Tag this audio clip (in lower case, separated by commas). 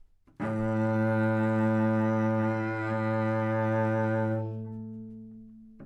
music, musical instrument, bowed string instrument